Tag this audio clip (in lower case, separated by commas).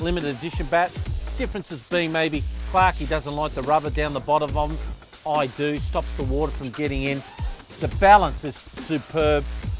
music, speech